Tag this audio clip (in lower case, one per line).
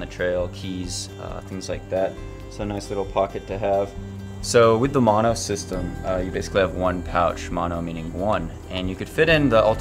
music
speech
man speaking